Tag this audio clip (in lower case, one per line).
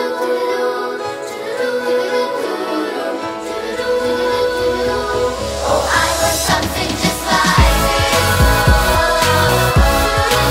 child singing